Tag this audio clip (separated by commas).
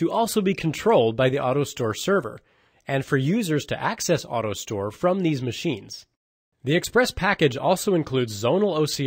Speech